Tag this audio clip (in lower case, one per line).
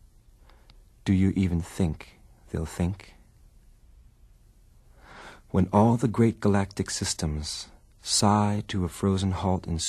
speech